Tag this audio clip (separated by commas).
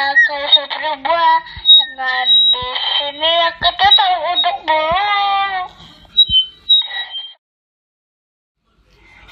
Child speech, Speech